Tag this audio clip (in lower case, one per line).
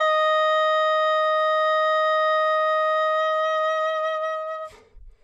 music
woodwind instrument
musical instrument